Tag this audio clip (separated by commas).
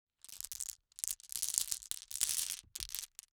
Glass